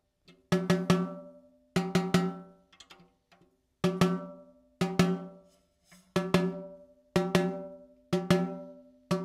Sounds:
playing snare drum

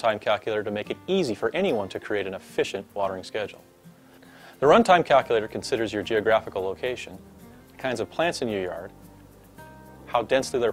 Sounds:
Music, Speech

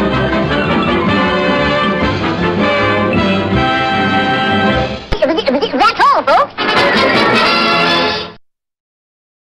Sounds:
Music, Speech

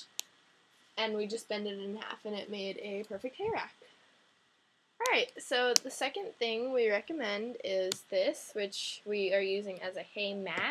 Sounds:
Speech

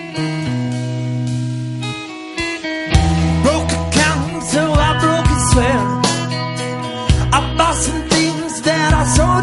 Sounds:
Music

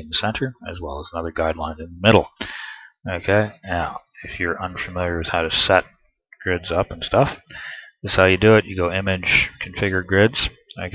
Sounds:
Speech

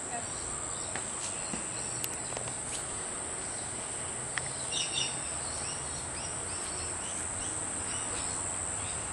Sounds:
Animal

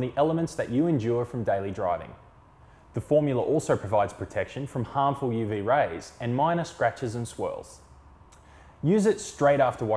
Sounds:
Speech

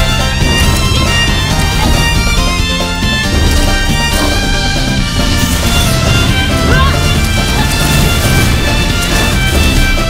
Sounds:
Music

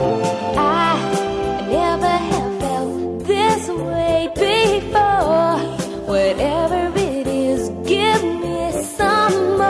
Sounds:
Music

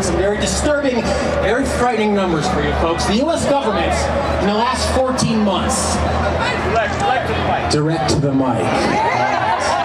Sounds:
Male speech, Speech, monologue

